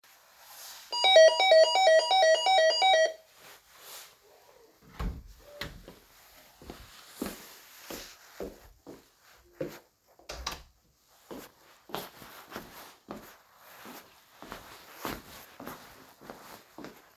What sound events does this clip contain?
bell ringing, door, footsteps